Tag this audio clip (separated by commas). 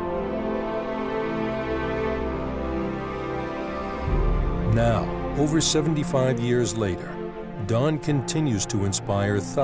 Music, Speech